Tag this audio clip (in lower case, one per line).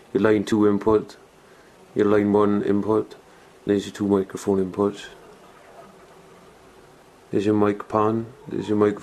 speech